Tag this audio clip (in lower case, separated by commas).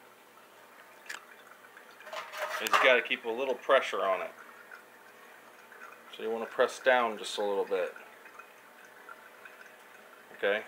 water, speech